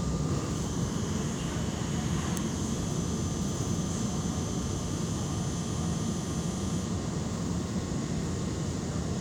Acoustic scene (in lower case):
subway train